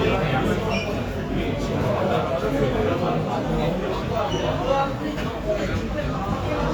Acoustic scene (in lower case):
crowded indoor space